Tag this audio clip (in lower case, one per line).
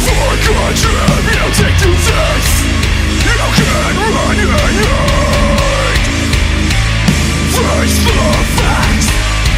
angry music
music